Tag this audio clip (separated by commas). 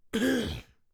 Cough, Respiratory sounds